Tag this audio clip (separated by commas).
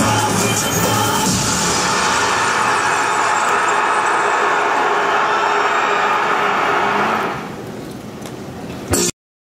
Music